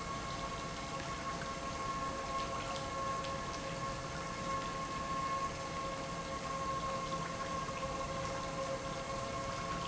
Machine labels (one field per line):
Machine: pump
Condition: normal